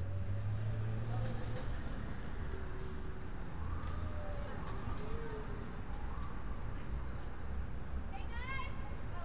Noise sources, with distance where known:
medium-sounding engine
siren, far
person or small group talking, near
person or small group shouting

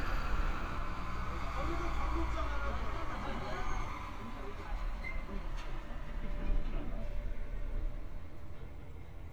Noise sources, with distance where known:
engine of unclear size, near
person or small group talking, near

